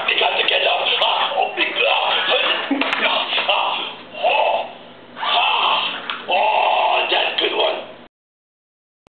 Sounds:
Speech, Male speech

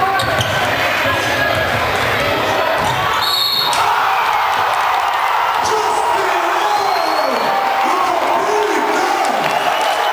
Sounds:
Speech

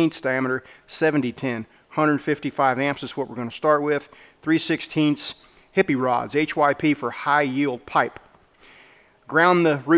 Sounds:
arc welding

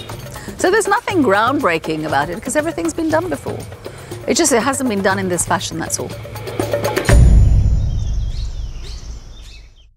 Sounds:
Speech, outside, rural or natural, Music, bird call

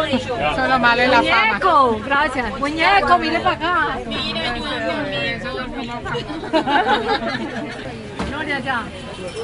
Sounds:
Speech

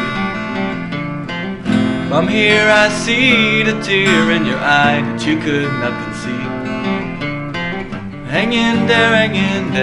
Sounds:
Acoustic guitar, Plucked string instrument, Strum, Guitar, Music, Musical instrument

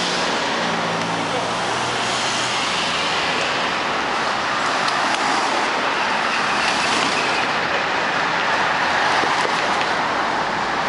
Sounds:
Vehicle

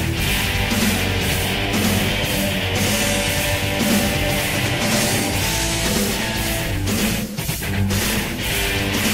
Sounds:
Music

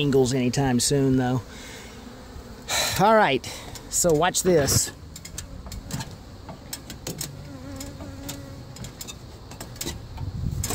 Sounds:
Fly, Insect, bee or wasp

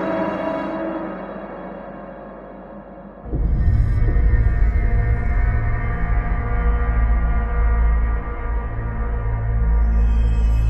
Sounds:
Music, Scary music, Soundtrack music

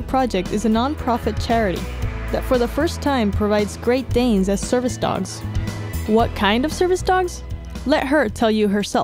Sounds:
Music, Speech

